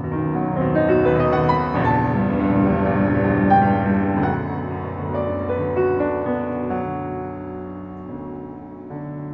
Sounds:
piano, music, opera

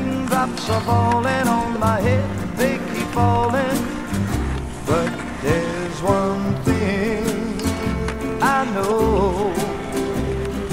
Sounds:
skateboard, music

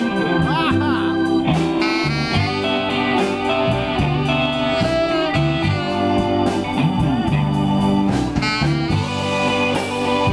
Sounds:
plucked string instrument, musical instrument, guitar, strum, music

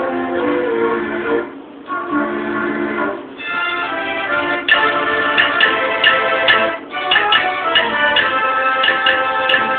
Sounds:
house music, music, tender music

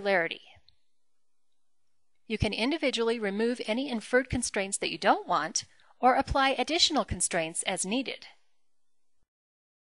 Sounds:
speech

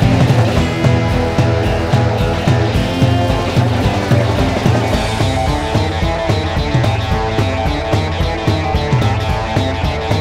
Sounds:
soundtrack music, music, video game music

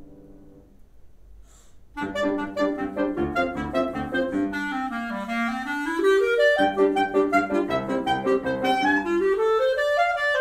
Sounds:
playing clarinet

